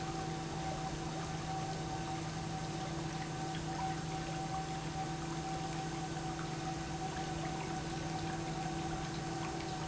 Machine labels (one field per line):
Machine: pump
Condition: normal